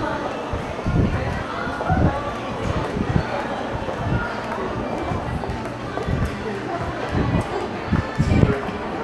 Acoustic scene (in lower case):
crowded indoor space